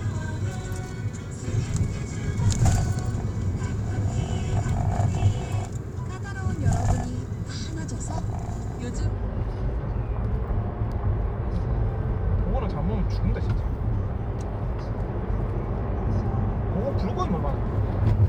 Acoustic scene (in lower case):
car